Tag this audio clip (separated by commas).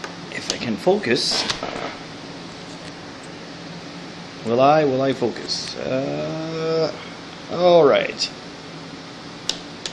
Speech